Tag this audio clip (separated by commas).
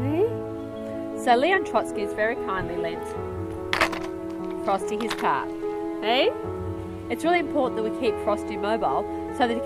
Speech, Music